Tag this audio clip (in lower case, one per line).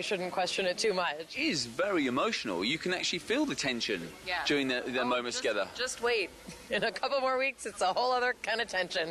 speech